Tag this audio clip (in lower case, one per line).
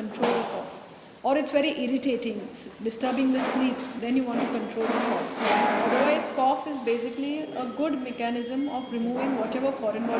speech